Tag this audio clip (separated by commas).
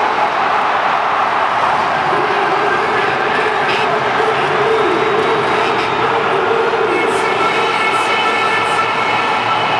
Motor vehicle (road), Speech, Vehicle